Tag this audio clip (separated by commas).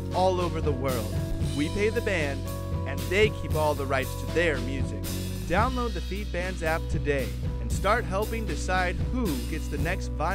Music, Speech